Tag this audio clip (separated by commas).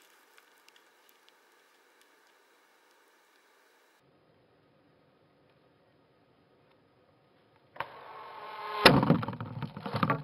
Arrow